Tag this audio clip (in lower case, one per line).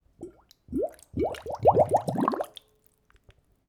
liquid